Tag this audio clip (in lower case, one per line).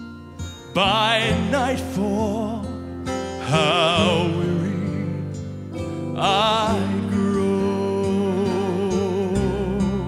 music